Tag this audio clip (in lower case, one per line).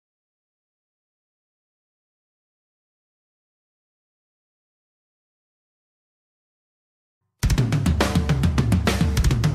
music
heavy metal